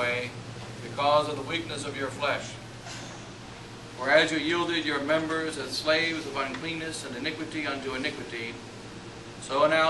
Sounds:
Speech

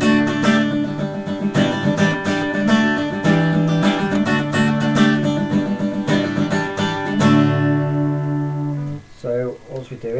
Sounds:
Musical instrument, Plucked string instrument, Acoustic guitar, Speech, Music, Guitar, Strum

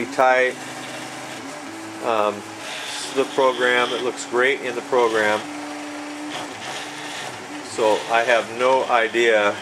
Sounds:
Printer, Speech

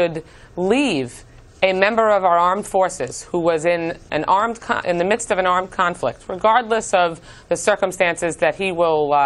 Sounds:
Speech

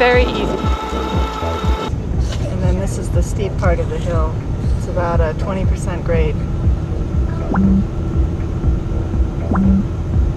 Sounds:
Speech, Vehicle, Music

